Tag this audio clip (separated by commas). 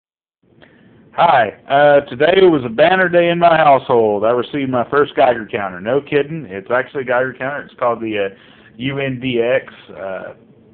Speech